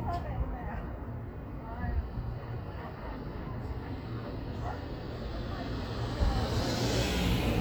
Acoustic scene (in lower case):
street